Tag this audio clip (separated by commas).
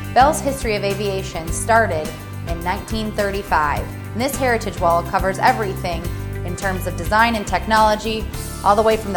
Speech, Music